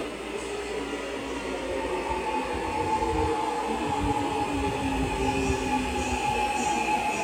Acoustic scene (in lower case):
subway station